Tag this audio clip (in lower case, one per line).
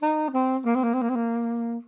musical instrument
music
woodwind instrument